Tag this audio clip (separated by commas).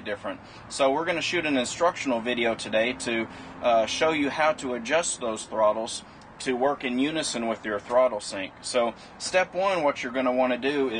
Vehicle, Speech